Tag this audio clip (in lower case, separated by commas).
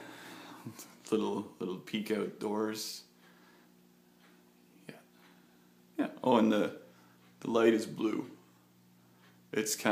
inside a small room, speech